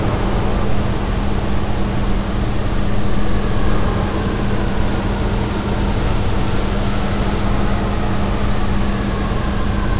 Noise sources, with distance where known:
large-sounding engine, near

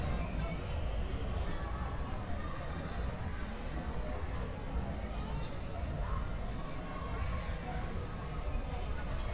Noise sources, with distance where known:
person or small group talking; person or small group shouting

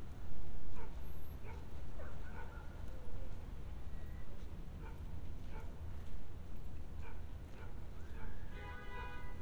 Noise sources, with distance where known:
car horn, far; dog barking or whining, far

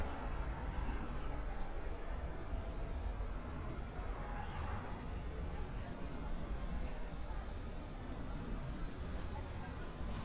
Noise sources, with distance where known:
background noise

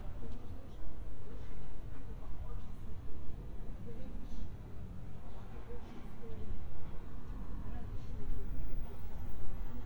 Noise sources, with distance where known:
background noise

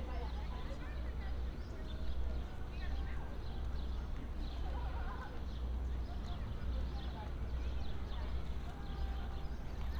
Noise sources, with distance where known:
music from an unclear source; person or small group talking

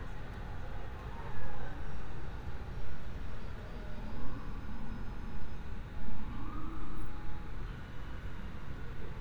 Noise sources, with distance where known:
siren, far

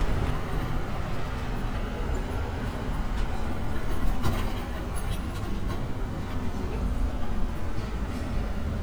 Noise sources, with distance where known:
large-sounding engine; person or small group talking, near

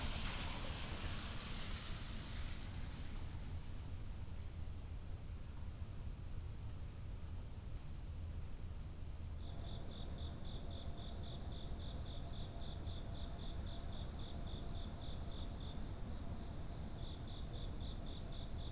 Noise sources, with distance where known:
background noise

